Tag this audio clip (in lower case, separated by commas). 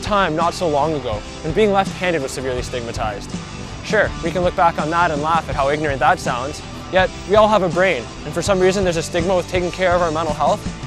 speech, music